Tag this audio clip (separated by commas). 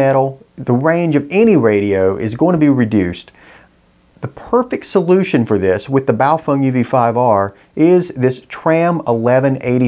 Speech